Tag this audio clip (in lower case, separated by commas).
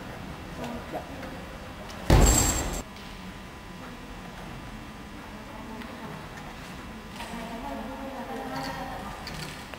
speech